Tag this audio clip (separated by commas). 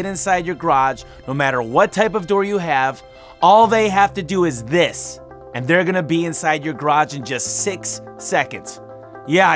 Speech, Music